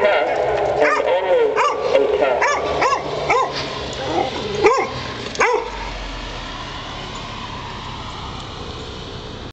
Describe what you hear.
A dog barks over a man speaking